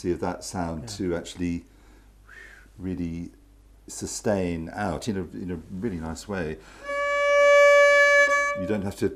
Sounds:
fiddle, musical instrument, music, bowed string instrument, speech, inside a small room

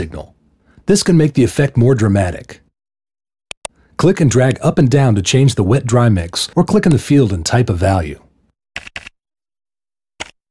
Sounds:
speech

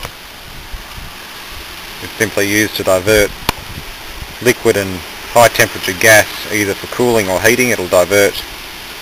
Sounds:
dribble, speech

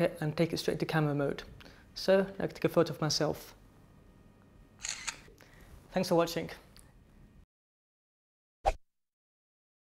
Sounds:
speech

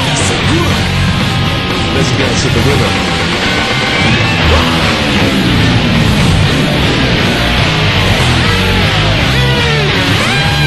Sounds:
music, musical instrument, electric guitar, strum, bass guitar

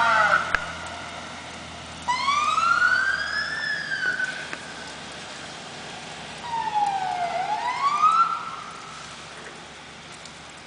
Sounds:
emergency vehicle, siren, fire engine

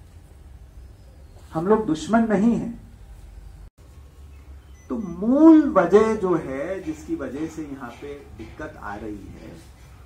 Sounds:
narration, man speaking, speech

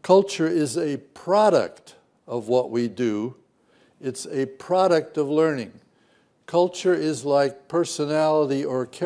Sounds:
man speaking, speech, narration

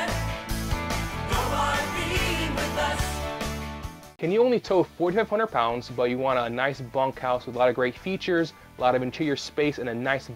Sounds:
speech, music

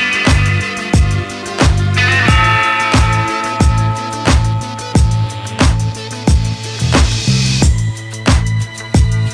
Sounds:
music

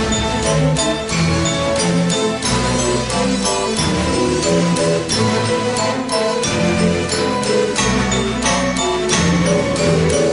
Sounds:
music

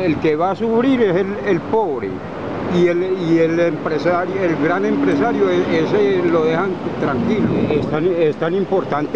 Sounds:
speech

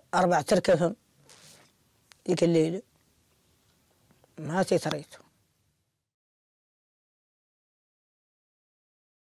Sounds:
inside a small room, silence, speech

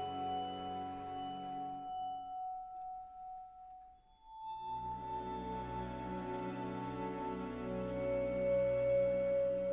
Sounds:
orchestra, music, vibraphone

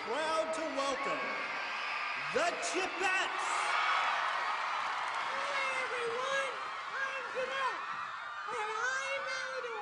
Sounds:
people booing

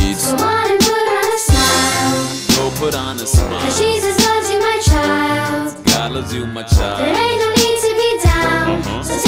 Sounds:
music, music for children

